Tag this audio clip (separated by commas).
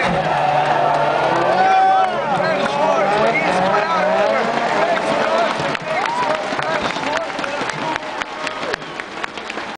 Speech